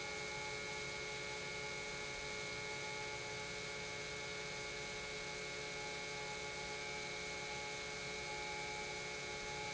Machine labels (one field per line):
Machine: pump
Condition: normal